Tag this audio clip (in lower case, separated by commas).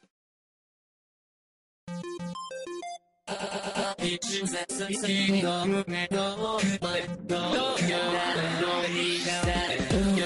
sampler, music